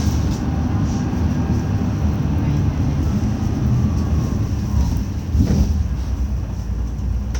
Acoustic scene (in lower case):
bus